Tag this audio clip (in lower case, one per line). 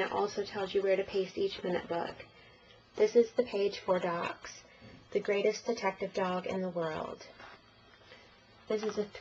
speech